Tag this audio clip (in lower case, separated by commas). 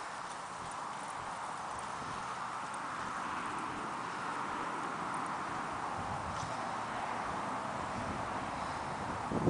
clip-clop, animal, horse clip-clop